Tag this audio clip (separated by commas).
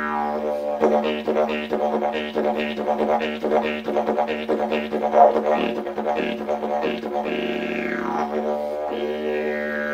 Music, Didgeridoo, Musical instrument